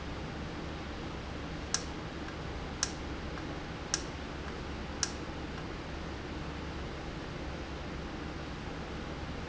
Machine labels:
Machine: valve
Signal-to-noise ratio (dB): -6 dB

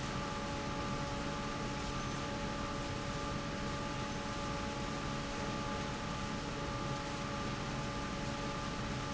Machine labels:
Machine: fan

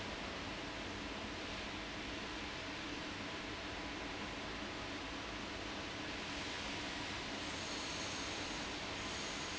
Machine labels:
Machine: fan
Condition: abnormal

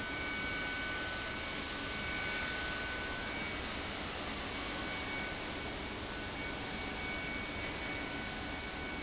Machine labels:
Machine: fan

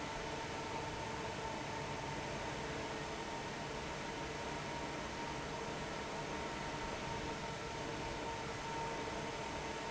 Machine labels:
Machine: fan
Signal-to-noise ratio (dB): 0 dB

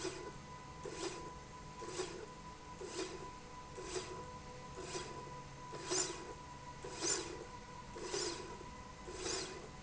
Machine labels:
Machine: slide rail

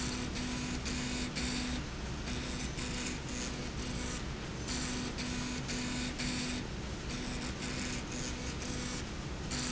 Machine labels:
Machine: slide rail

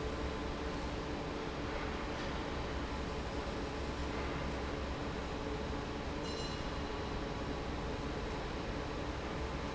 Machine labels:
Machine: fan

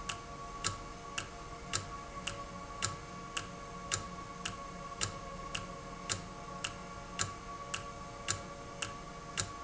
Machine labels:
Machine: valve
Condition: normal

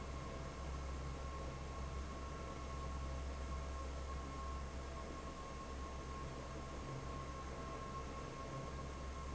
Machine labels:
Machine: fan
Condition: normal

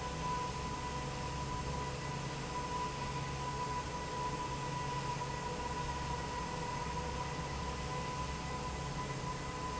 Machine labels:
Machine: fan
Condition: normal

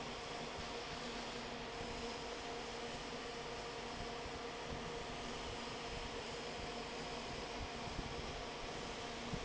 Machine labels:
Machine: fan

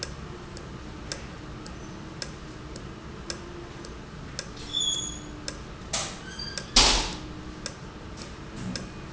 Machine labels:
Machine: valve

